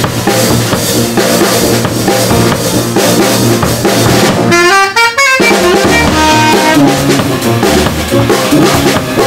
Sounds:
exciting music, funk, music

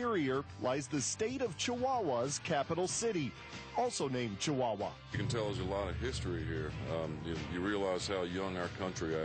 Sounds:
music, speech

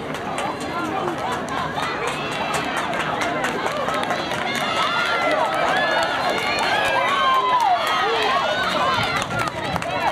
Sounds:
speech, inside a public space

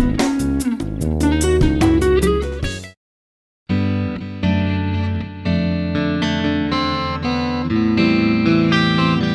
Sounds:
music

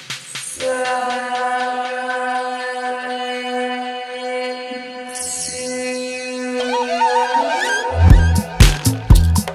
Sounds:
inside a large room or hall, music

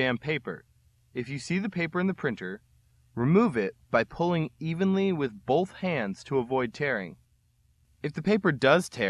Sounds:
speech

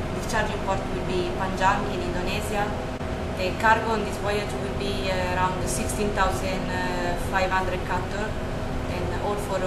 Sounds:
speech

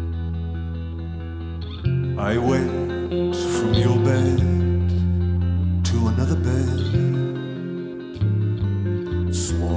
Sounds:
music, singing

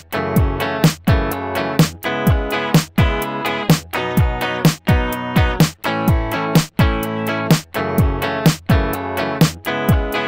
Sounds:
music

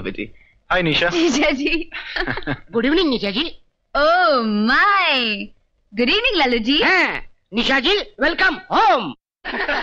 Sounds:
speech, inside a large room or hall

